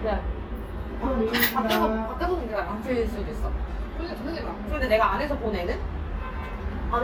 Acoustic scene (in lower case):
restaurant